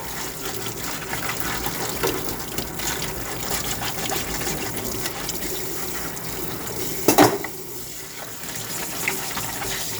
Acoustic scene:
kitchen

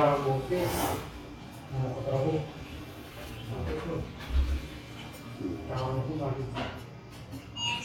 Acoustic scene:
restaurant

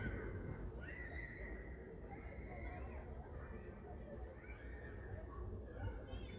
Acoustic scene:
residential area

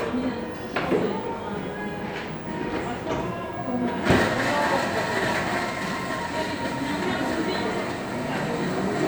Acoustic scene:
cafe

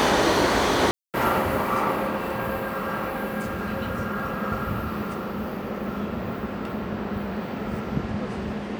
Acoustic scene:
subway station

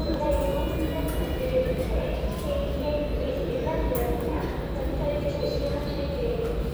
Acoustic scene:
subway station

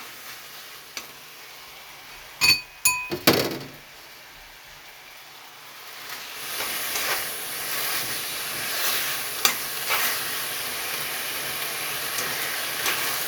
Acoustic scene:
kitchen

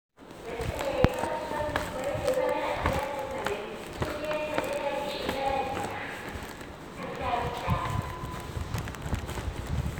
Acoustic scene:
subway station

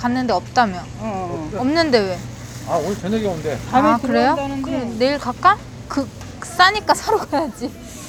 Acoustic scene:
crowded indoor space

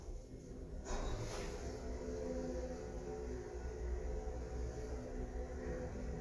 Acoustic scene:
elevator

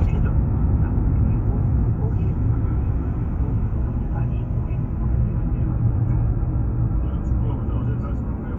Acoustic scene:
car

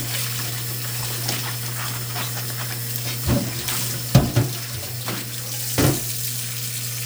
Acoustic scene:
kitchen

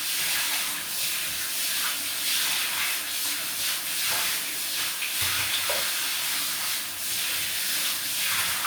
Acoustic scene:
restroom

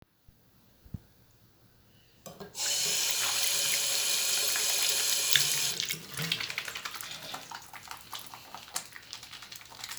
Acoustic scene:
restroom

